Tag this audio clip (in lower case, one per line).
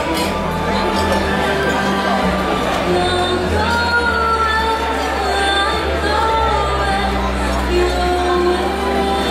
music
female singing